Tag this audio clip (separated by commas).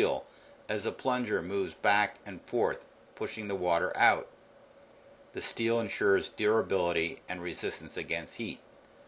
Speech